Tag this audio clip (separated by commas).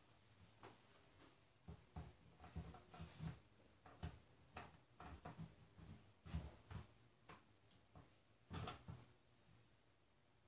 Silence